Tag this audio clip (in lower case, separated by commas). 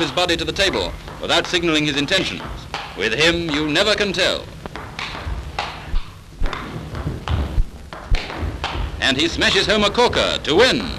playing table tennis